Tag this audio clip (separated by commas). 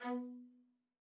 Music, Musical instrument, Bowed string instrument